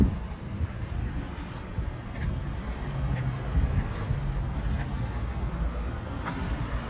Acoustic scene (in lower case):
residential area